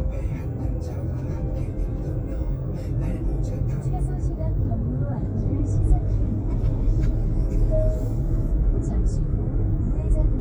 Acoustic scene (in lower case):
car